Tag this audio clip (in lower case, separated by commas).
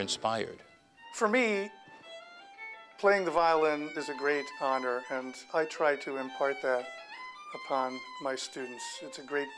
music, speech